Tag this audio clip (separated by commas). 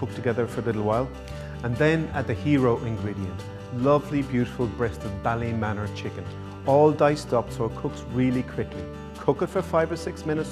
Music, Speech